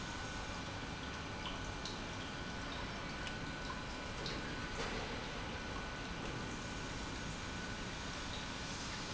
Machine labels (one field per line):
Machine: pump